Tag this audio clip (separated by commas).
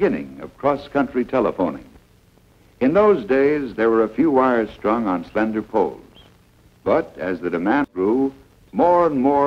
Speech